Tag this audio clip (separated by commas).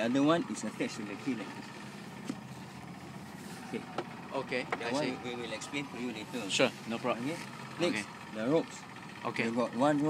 Water vehicle, speedboat